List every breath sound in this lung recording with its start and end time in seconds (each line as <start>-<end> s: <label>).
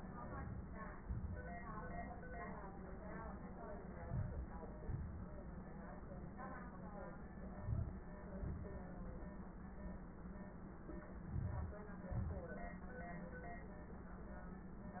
3.93-4.44 s: inhalation
4.84-5.35 s: exhalation
7.55-8.06 s: inhalation
8.44-8.96 s: exhalation
11.29-11.80 s: inhalation
12.16-12.56 s: exhalation